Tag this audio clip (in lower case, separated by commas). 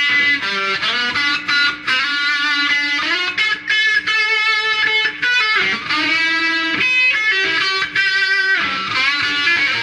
plucked string instrument, musical instrument, tapping (guitar technique), guitar, music